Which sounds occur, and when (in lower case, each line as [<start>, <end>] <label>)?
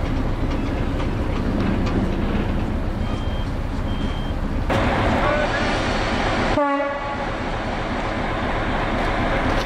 [0.00, 9.65] rail transport
[0.10, 1.97] clickety-clack
[2.92, 3.44] bleep
[3.84, 4.28] bleep
[5.12, 5.61] man speaking
[6.50, 7.17] train horn
[9.45, 9.61] generic impact sounds